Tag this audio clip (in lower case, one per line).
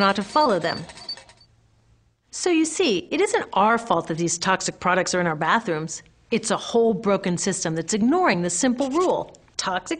speech